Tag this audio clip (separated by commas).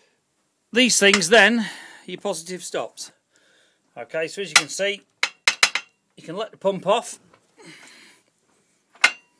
Speech